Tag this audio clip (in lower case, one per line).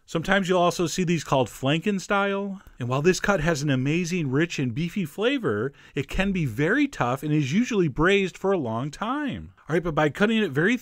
speech